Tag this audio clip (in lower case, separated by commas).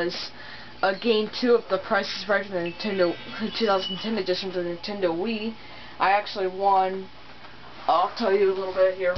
music, speech